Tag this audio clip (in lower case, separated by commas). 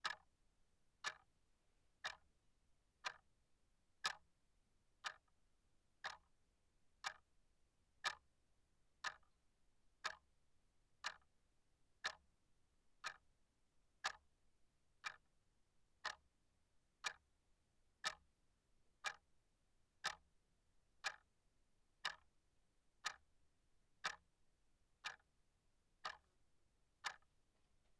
clock, mechanisms